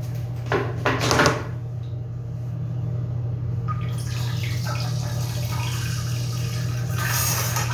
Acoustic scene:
restroom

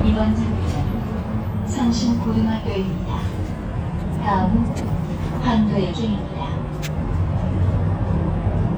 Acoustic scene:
bus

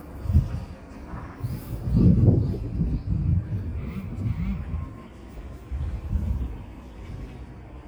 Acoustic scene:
residential area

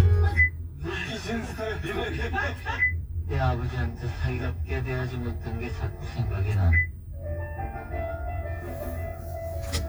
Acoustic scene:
car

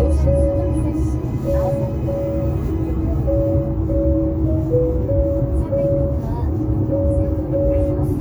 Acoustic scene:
car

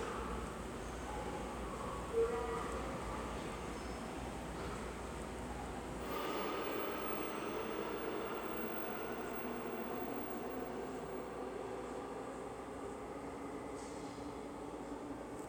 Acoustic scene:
subway station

